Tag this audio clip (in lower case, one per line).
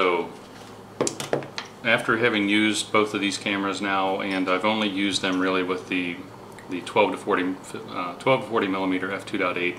speech
inside a small room